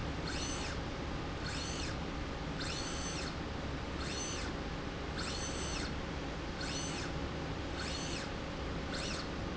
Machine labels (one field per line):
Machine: slide rail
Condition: normal